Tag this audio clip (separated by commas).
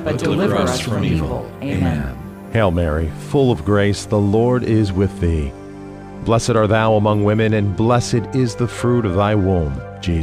Speech, Music